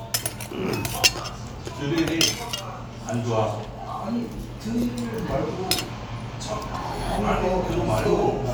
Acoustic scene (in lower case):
restaurant